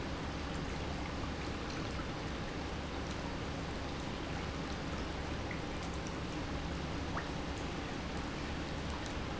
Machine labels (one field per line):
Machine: pump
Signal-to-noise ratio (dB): -6 dB